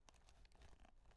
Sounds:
Animal

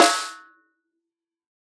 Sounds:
Drum, Snare drum, Percussion, Music, Musical instrument

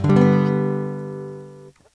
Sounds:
Musical instrument, Guitar, Acoustic guitar, Strum, Music, Plucked string instrument

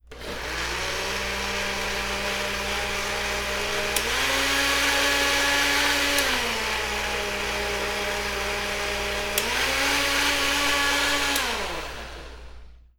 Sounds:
home sounds

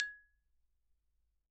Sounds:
Musical instrument, Music, xylophone, Mallet percussion, Percussion

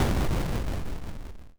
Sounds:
Explosion, Boom

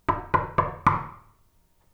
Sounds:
Knock, Door, Domestic sounds

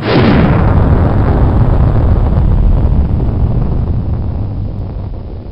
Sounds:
Explosion

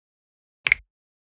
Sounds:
Finger snapping, Hands

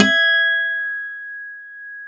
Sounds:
Music, Plucked string instrument, Musical instrument, Acoustic guitar, Guitar

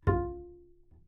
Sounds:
Music, Bowed string instrument, Musical instrument

